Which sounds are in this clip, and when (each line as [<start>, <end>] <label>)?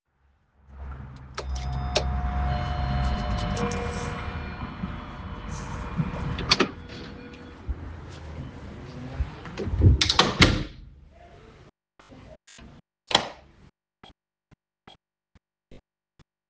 [1.36, 7.73] bell ringing
[6.36, 6.87] door
[9.73, 10.78] door